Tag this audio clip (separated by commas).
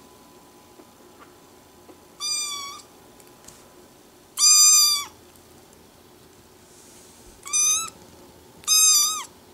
cat meowing